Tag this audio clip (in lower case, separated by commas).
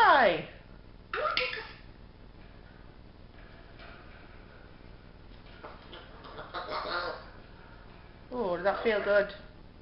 speech, bird, pets